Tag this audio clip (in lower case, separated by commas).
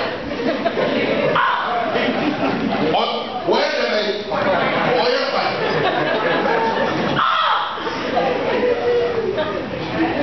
male speech, speech